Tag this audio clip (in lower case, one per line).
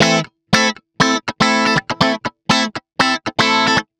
guitar
music
plucked string instrument
musical instrument